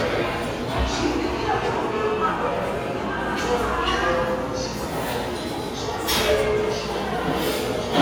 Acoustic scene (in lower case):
restaurant